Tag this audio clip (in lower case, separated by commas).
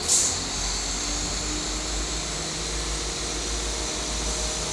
vehicle, train, rail transport